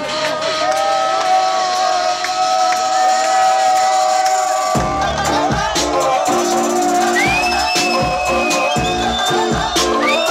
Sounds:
speech, music

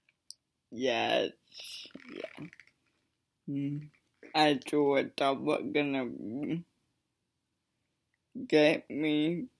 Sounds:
speech

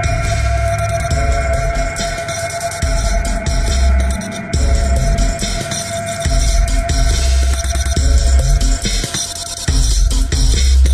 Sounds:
electronic music, dubstep, music

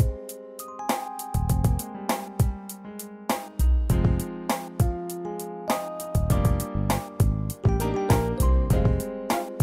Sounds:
music

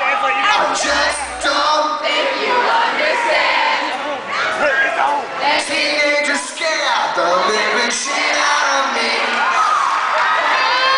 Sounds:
male singing, speech

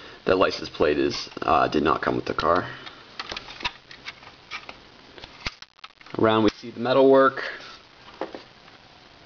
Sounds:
speech

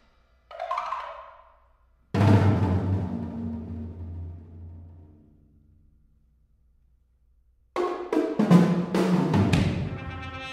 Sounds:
drum, musical instrument, trumpet, music

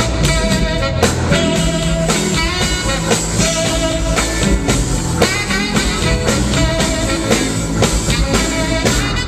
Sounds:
music

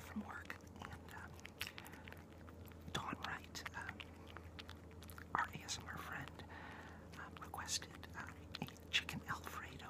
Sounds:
speech

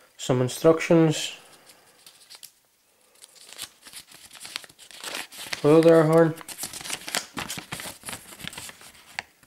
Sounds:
biting, speech

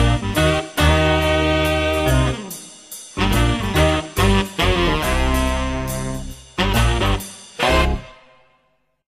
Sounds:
music, exciting music

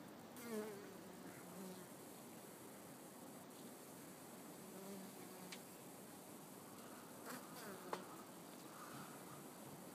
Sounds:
housefly, insect, bee or wasp

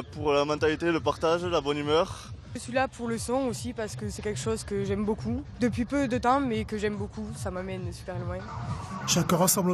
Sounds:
music, speech

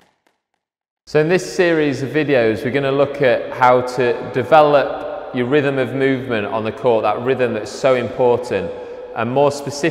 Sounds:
playing squash

